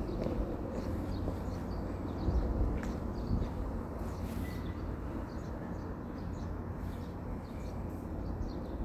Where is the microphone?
in a residential area